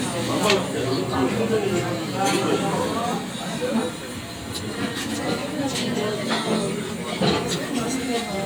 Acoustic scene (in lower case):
crowded indoor space